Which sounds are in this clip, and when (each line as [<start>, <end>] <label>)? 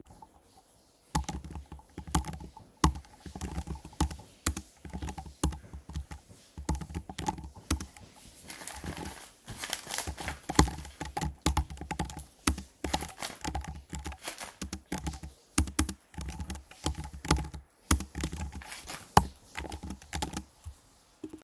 [0.00, 21.44] running water
[1.09, 21.44] keyboard typing